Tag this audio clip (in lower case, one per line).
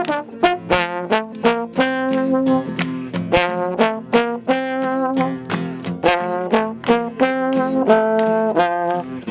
playing trombone